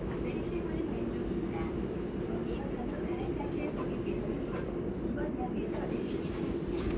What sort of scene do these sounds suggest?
subway train